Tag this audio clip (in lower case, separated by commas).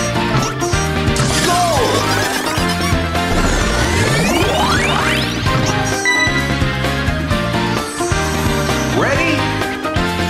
music, speech